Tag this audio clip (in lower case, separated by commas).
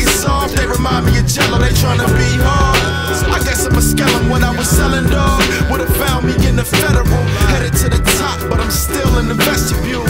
music, background music